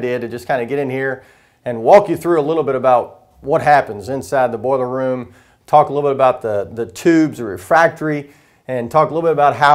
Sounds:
Speech

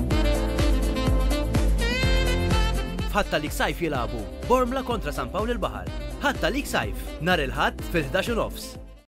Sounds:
Speech, Music

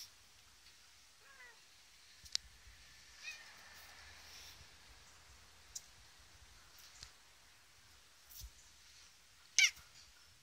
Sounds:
cat caterwauling

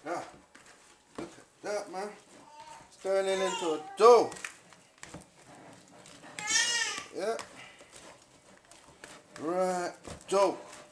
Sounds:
Speech, inside a small room

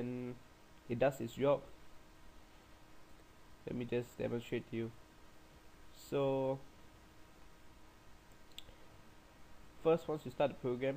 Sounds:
Speech

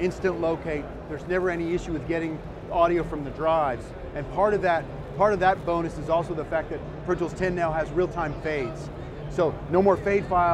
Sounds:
Speech

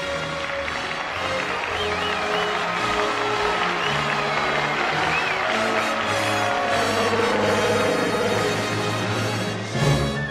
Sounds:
Music

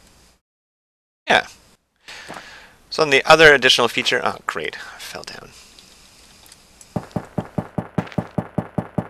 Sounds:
Plop, Speech

